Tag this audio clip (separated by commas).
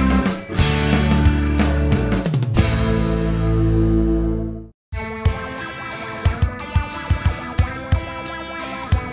Music